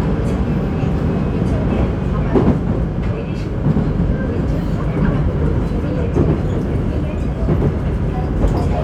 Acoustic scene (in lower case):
subway train